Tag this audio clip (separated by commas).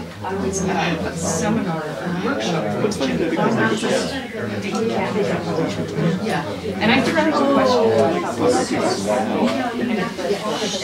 Speech